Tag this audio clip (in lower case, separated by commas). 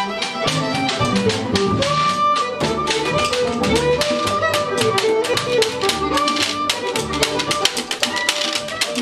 violin, music, musical instrument